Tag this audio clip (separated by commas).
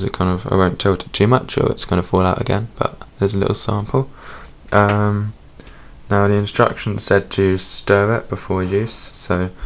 Speech